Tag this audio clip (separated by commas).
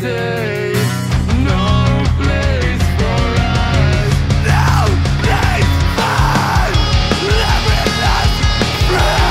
Soul music, Music